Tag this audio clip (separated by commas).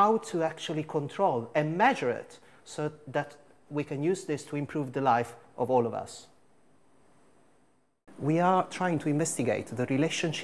Speech